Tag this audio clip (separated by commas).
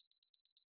Alarm